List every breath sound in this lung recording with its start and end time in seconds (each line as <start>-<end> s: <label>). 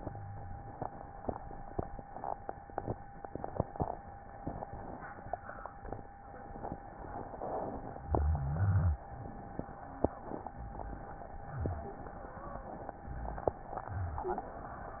8.04-9.07 s: rhonchi